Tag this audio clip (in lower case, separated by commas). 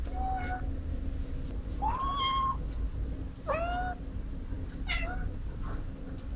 domestic animals, cat, animal, meow